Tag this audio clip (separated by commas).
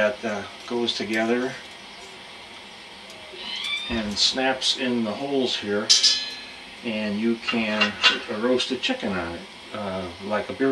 Speech